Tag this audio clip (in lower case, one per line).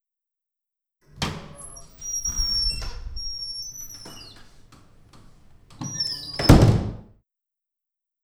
wood
squeak
door
slam
home sounds